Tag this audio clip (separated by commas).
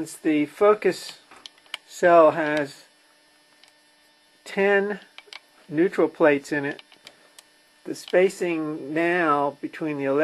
Speech